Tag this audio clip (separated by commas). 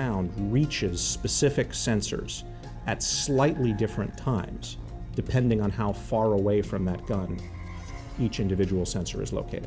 Speech, Music